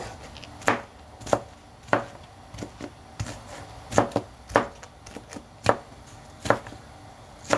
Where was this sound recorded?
in a kitchen